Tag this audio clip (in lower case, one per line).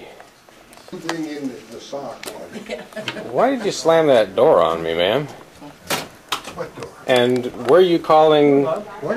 speech